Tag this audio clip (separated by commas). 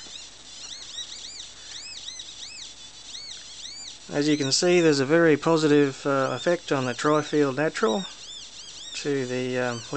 Speech